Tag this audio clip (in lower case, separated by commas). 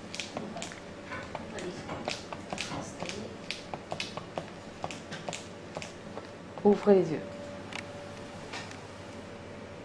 speech